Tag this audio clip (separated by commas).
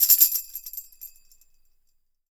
Music, Musical instrument, Percussion, Tambourine